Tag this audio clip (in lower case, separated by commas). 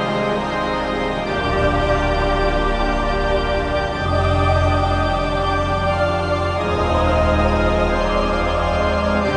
music